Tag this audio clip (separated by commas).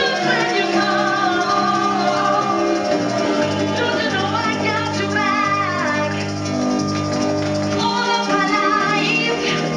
Drum and bass, Music, Electronic music